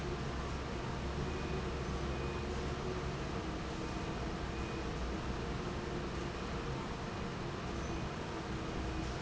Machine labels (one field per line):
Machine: fan